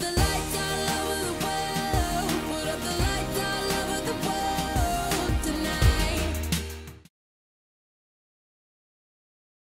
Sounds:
music

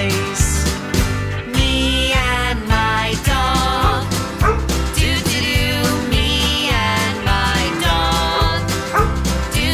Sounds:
music

